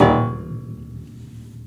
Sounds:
Piano, Musical instrument, Keyboard (musical), Music

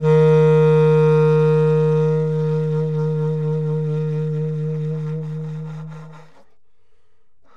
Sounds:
Wind instrument, Musical instrument, Music

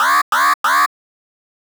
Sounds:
Alarm

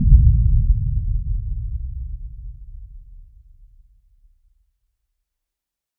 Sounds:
Boom, Explosion

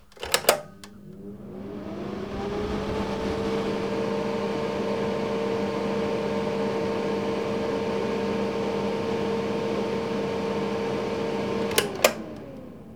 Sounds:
Mechanisms, Mechanical fan

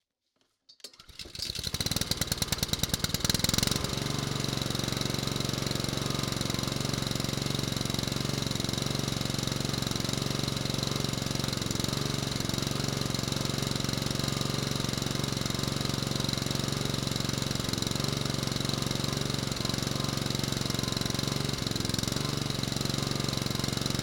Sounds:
Engine

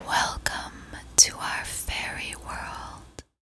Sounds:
Human voice, Whispering

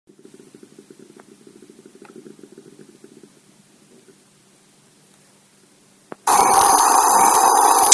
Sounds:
Hiss

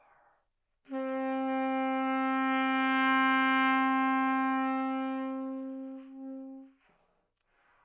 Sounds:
Musical instrument, Wind instrument, Music

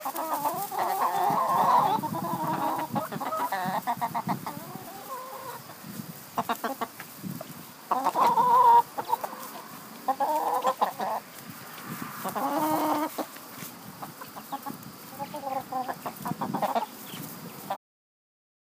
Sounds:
Animal, rooster, livestock, Fowl

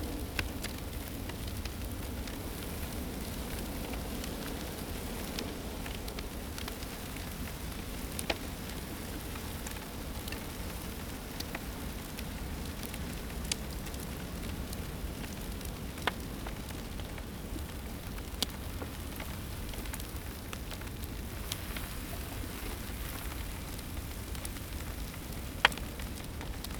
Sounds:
Fire

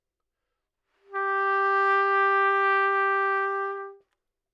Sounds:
Musical instrument, Brass instrument, Trumpet, Music

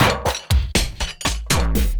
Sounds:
Musical instrument, Music, Percussion, Drum kit

